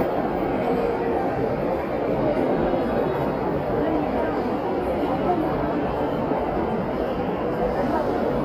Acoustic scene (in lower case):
crowded indoor space